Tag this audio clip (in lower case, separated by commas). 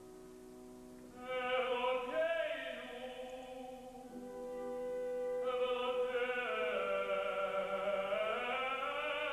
music